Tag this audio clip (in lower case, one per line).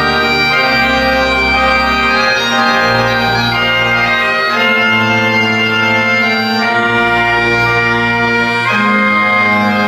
playing bagpipes